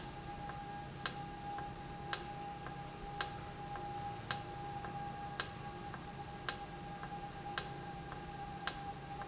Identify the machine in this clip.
valve